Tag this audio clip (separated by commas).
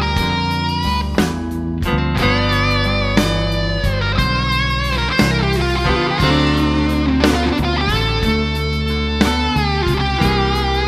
Musical instrument, Electric guitar, Guitar, Music, Strum, Plucked string instrument